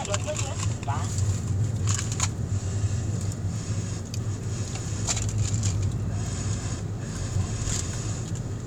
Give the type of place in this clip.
car